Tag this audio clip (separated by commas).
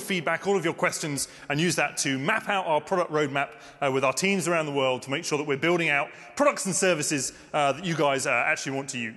Speech